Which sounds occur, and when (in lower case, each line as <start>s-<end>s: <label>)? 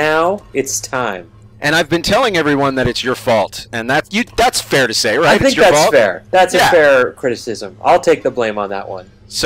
0.0s-0.4s: male speech
0.0s-9.4s: conversation
0.0s-9.4s: music
0.0s-9.4s: video game sound
0.5s-1.2s: male speech
1.6s-3.6s: male speech
3.7s-6.2s: male speech
6.3s-7.7s: male speech
7.8s-9.0s: male speech
9.2s-9.4s: male speech